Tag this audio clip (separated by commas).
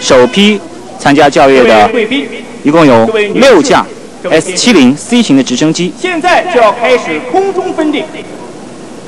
Speech